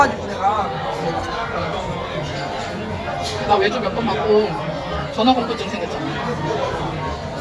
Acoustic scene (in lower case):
crowded indoor space